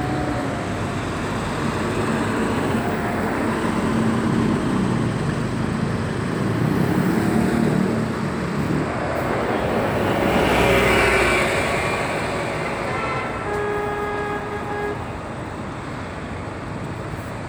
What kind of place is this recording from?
street